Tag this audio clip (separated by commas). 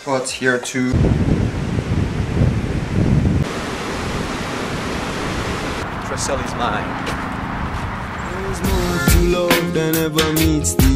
Music, surf, Speech